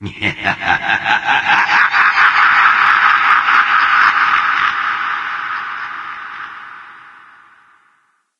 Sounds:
Human voice, Laughter

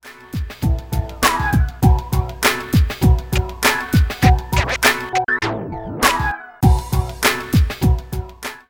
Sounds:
Scratching (performance technique), Musical instrument, Music

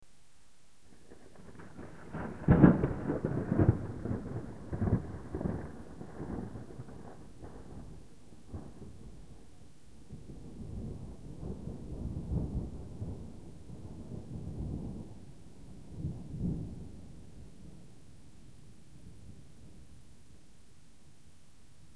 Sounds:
Thunder, Thunderstorm

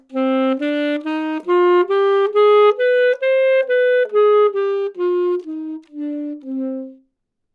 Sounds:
Music, Musical instrument, Wind instrument

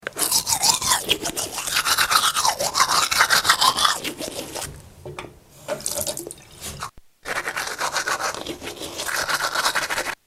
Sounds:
home sounds

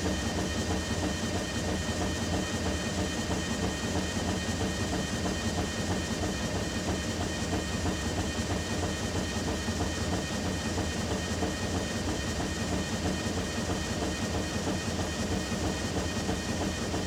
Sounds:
Mechanisms

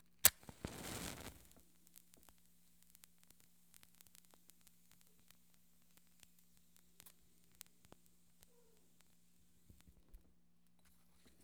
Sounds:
Fire

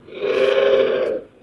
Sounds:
Animal

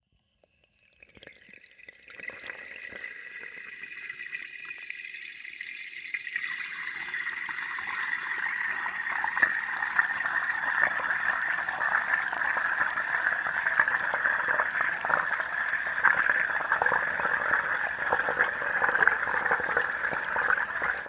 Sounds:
Liquid, Fill (with liquid)

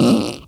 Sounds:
Fart

